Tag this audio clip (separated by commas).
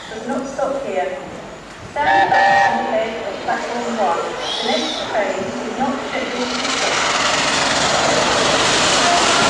Rail transport, train wagon, Clickety-clack, Train, Train whistle